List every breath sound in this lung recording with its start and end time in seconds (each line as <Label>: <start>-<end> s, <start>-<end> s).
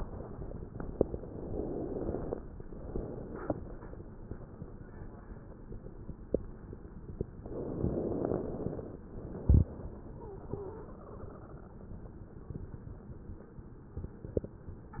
Inhalation: 1.02-2.35 s, 7.42-9.05 s
Exhalation: 2.51-3.94 s, 9.09-11.70 s